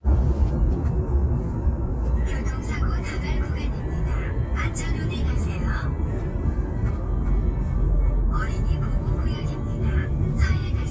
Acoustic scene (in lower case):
car